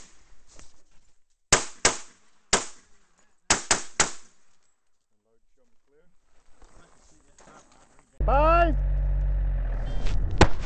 Someone is firing a pistol